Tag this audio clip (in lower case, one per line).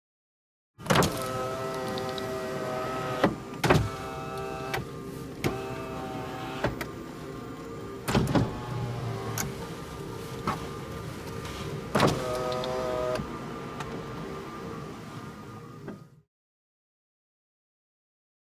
car
vehicle
motor vehicle (road)